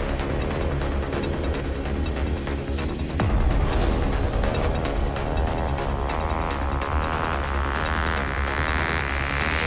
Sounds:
Music

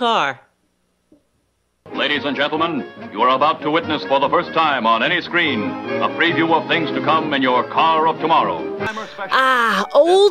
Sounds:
Speech, Music

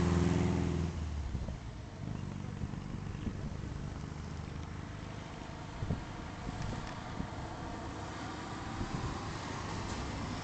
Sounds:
Car, Vehicle

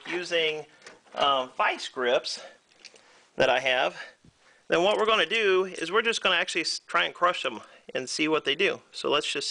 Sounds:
Speech

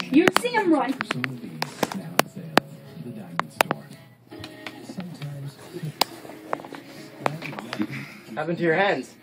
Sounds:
Speech, Music

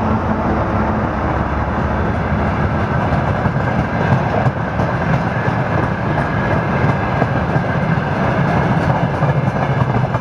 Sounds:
Train, Vehicle, Rail transport

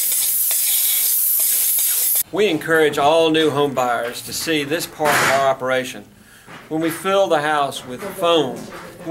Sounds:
Spray, Speech

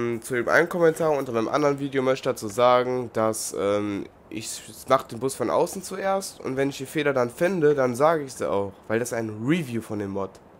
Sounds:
Speech

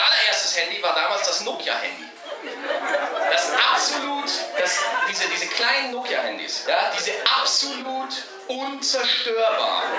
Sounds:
Speech, chortle

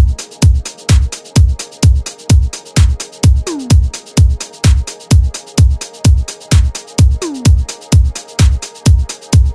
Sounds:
Music, House music

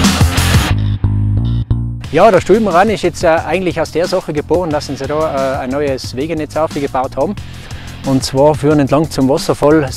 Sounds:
Music, Speech

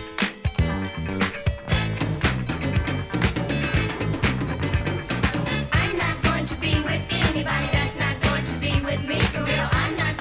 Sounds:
Music

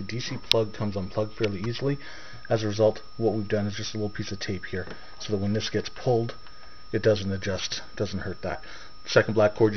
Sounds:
Speech

